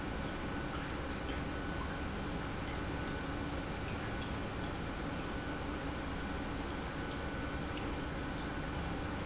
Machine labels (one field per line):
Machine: pump